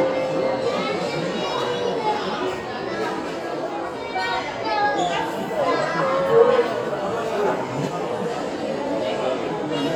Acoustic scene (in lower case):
restaurant